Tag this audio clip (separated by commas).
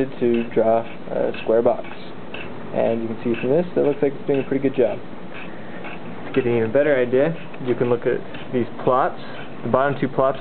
inside a small room, Speech